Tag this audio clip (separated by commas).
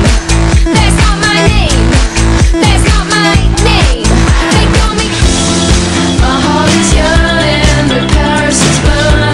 Music